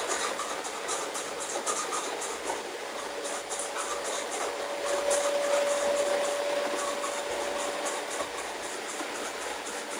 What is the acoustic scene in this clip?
restroom